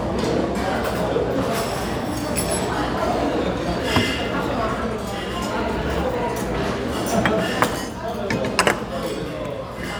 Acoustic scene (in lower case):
restaurant